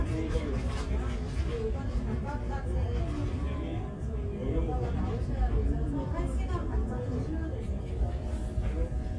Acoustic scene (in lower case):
crowded indoor space